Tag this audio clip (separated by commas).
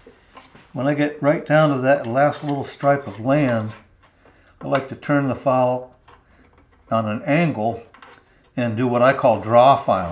Speech